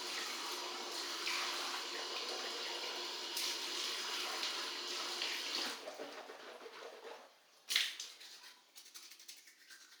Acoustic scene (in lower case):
restroom